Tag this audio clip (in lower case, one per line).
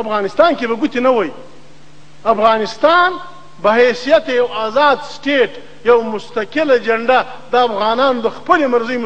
male speech
monologue
speech